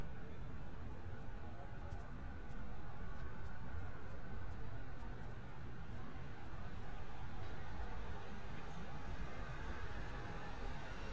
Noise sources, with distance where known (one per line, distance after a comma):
large-sounding engine